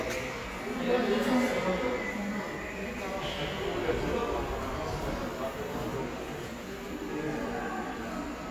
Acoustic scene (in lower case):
subway station